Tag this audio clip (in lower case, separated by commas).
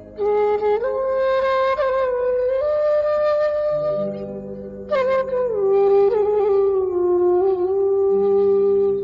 flute